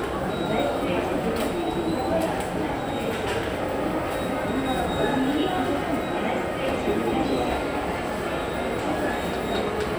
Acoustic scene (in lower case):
subway station